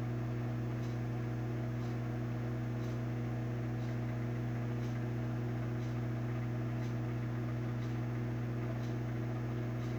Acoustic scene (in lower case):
kitchen